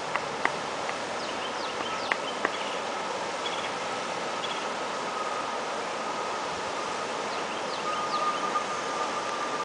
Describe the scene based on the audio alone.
Birds chirp while water runs